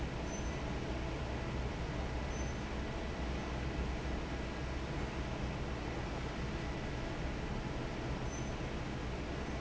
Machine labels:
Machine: fan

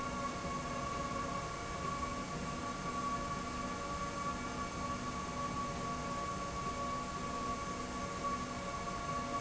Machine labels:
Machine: slide rail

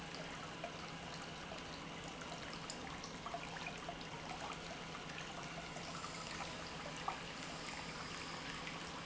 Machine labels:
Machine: pump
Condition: normal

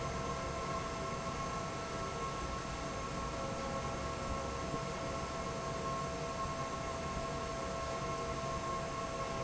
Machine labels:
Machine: fan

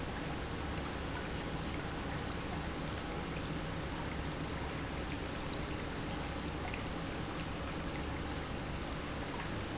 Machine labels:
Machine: pump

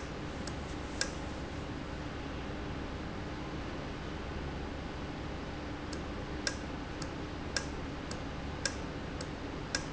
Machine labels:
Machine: valve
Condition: normal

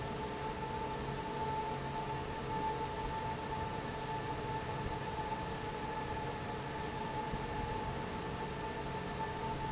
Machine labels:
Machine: fan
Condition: normal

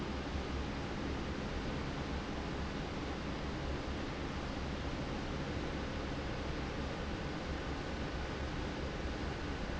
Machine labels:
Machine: fan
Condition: normal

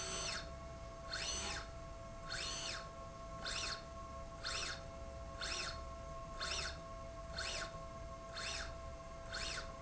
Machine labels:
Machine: slide rail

